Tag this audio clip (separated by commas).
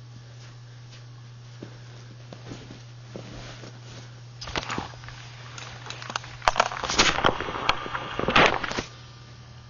Crackle